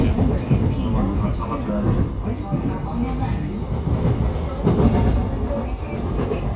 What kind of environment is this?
subway train